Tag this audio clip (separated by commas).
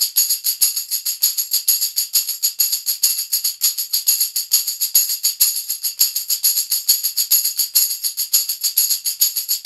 playing tambourine